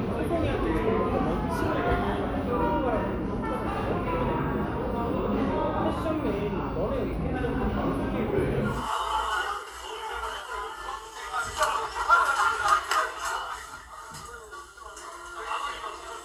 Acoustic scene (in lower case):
crowded indoor space